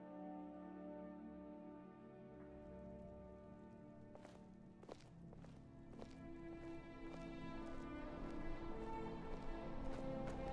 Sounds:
music

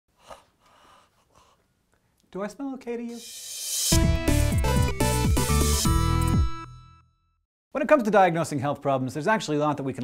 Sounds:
speech, inside a small room, music

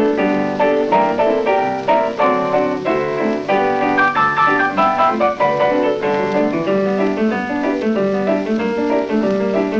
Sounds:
keyboard (musical), piano, music

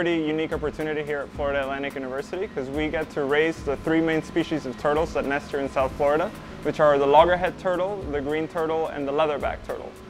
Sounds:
music, speech

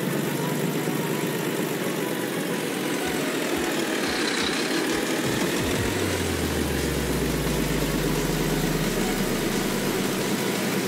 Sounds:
truck, music, vehicle

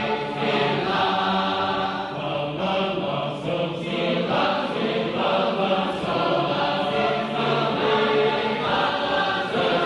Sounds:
male singing, female singing, choir

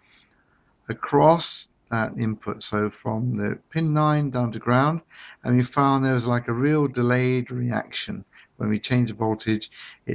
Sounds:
speech

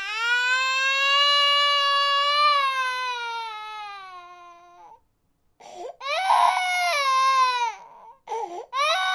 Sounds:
baby crying

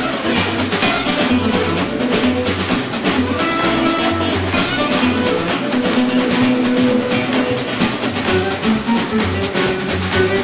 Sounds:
musical instrument, plucked string instrument, music, blues, jazz, guitar

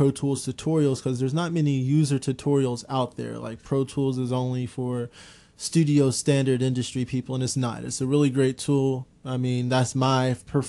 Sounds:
speech

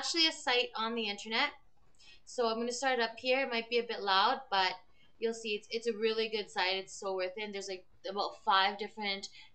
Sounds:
speech

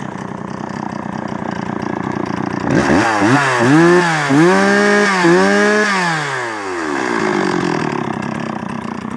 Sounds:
motorcycle

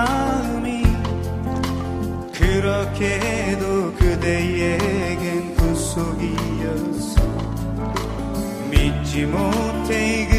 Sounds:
music

